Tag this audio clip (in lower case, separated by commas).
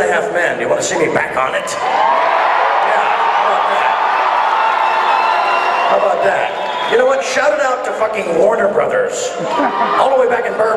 speech, music